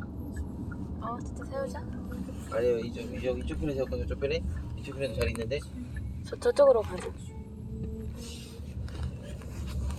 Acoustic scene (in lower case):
car